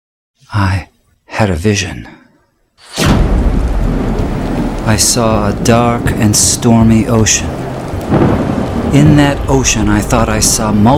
A man speaking followed by water splashing and thunder roaring